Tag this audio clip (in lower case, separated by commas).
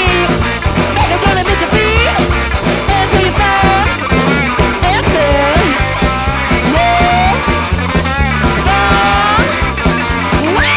exciting music, music